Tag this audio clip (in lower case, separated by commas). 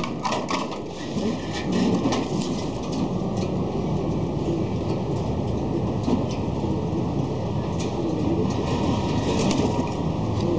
bird